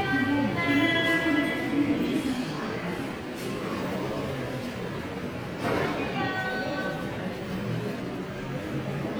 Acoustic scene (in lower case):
subway station